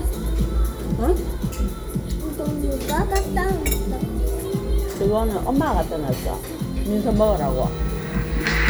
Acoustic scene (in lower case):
restaurant